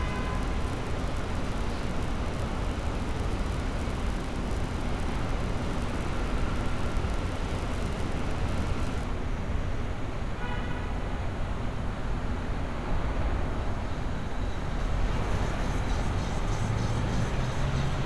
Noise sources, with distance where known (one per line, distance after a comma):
car horn